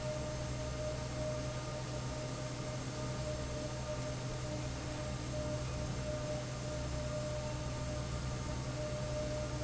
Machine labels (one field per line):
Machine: fan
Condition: normal